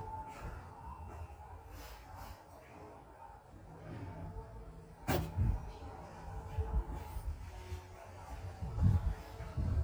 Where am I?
in an elevator